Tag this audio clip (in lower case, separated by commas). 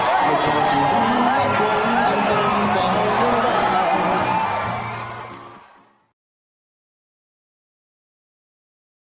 music, speech